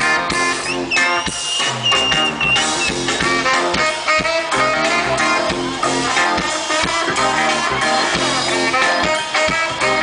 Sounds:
Music

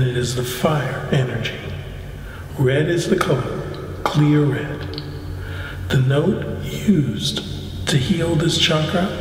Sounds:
Speech

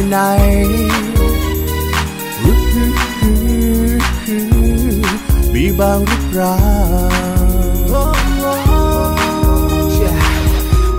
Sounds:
Music

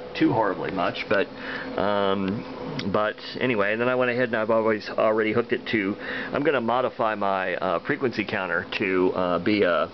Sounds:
Speech

